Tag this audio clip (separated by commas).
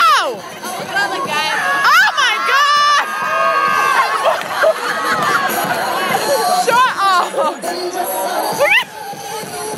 Crowd, Music, Speech